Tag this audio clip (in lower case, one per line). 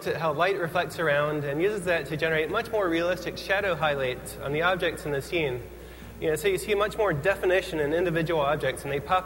speech